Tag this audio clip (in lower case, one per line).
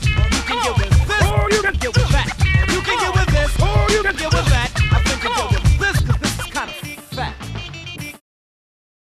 music